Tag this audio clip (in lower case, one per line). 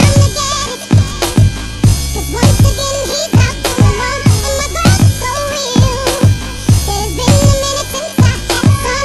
music